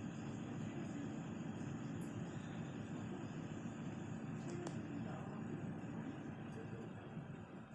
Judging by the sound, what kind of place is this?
bus